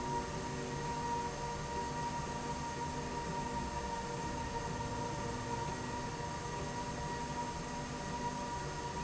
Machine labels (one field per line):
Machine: slide rail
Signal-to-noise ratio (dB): -6 dB